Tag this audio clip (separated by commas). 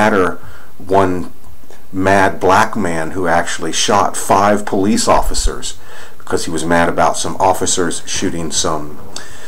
Speech